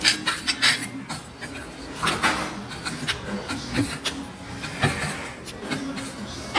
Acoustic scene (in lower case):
restaurant